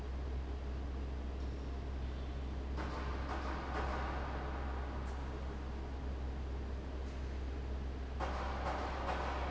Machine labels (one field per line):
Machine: fan